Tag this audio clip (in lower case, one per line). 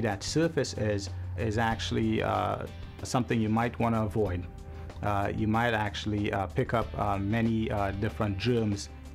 music
speech